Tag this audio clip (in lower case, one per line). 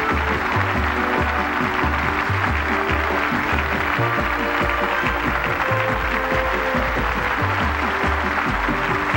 music